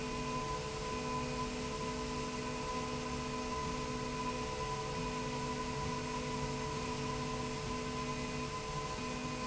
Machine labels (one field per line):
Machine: slide rail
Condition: normal